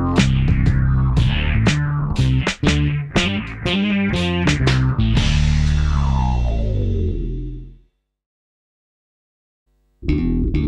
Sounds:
Bass guitar, Musical instrument, Plucked string instrument, Electric guitar, Strum, Guitar, Music

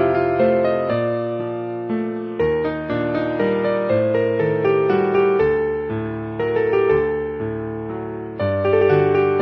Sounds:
Music

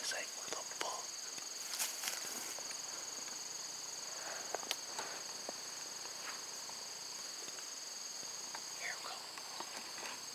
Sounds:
coyote howling

